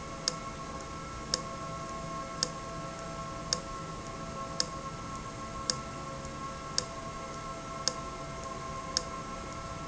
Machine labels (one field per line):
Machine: valve